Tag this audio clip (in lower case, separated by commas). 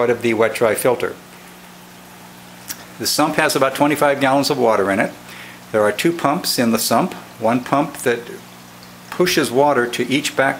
speech